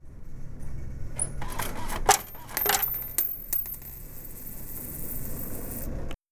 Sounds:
coin (dropping)
home sounds

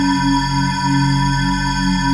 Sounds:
music
musical instrument
keyboard (musical)
organ

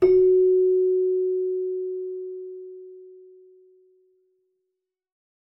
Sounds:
music
keyboard (musical)
musical instrument

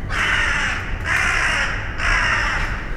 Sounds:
bird
bird vocalization
crow
wild animals
animal

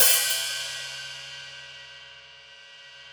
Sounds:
hi-hat
cymbal
percussion
musical instrument
music

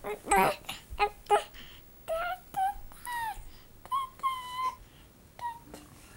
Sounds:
speech
human voice

